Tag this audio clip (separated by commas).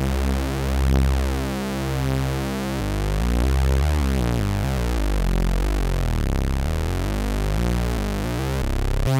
playing synthesizer